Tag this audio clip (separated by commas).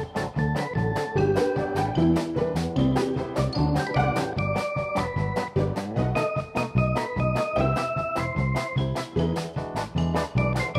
Music